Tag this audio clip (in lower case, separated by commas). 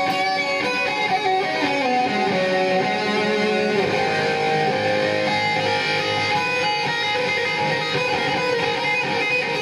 music, musical instrument, strum